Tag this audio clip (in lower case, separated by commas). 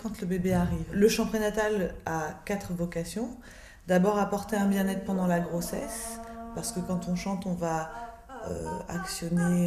speech